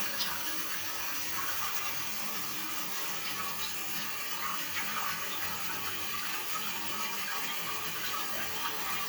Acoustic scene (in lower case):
restroom